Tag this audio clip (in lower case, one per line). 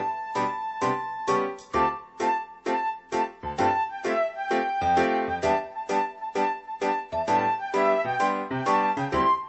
music